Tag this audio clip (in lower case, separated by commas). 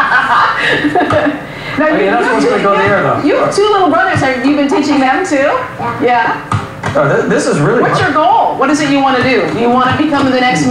television, woman speaking, speech